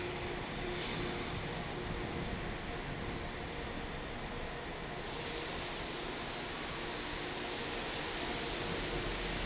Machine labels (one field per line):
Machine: fan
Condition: normal